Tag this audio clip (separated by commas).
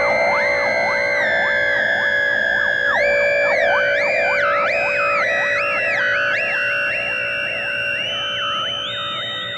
Music